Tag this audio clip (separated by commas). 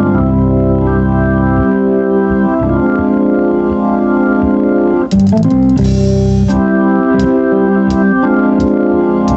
Organ, Hammond organ